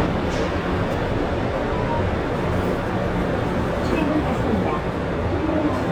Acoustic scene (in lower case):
subway train